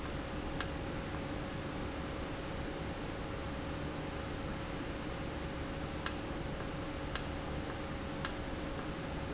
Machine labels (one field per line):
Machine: valve